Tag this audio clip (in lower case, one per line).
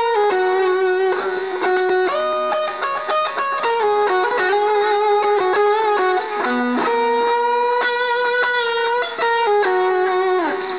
musical instrument
music
effects unit
guitar